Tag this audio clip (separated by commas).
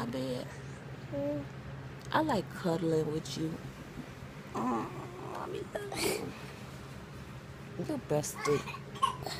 chortle, Child speech